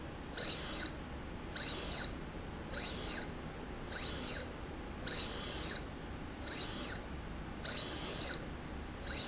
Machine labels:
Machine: slide rail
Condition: abnormal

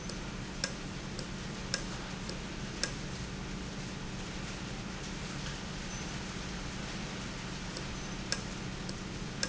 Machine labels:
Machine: valve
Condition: normal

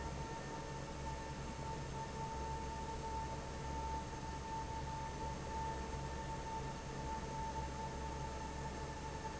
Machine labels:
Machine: fan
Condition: normal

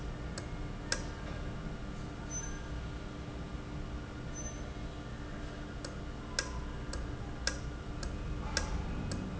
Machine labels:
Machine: valve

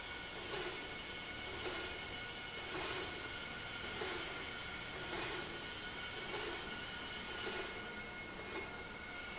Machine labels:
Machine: slide rail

